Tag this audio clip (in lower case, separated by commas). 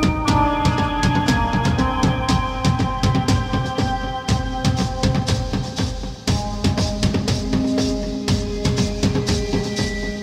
music